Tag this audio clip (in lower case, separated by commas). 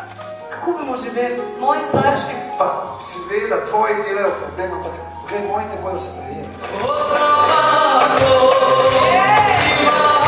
music, speech